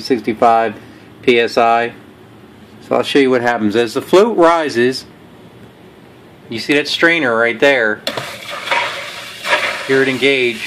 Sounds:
water

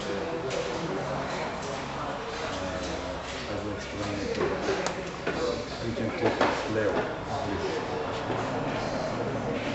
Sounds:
speech

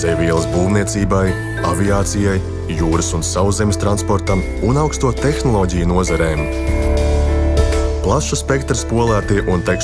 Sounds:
speech, music

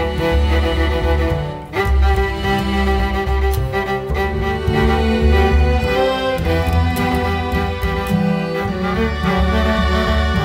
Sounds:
music

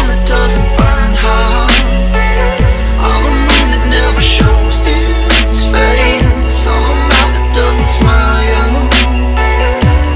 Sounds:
music, dubstep

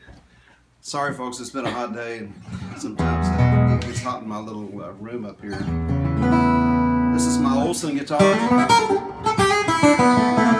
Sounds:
music, speech

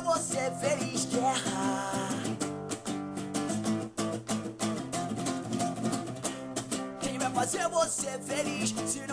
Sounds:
music

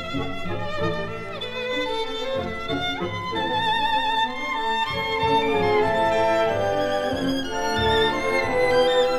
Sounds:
music, musical instrument, fiddle

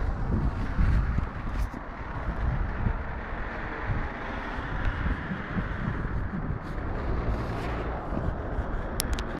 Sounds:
car, vehicle

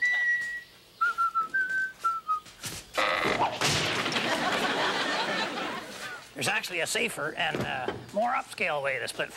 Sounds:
whistling

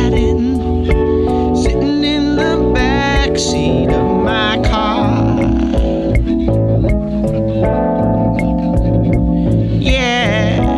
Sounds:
music

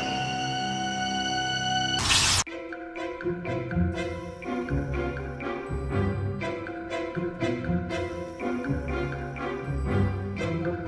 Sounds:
music

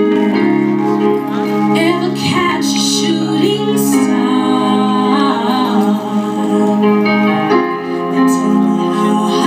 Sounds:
music, female singing

